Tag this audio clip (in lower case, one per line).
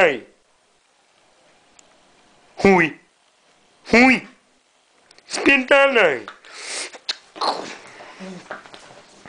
speech